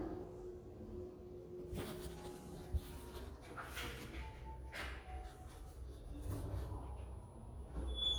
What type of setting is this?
elevator